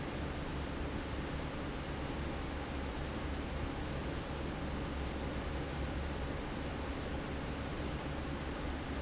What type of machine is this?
fan